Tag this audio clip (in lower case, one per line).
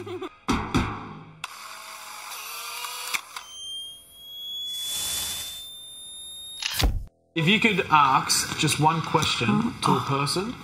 music
speech
inside a large room or hall